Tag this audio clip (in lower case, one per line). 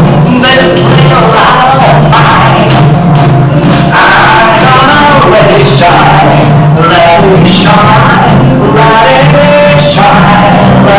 music
male singing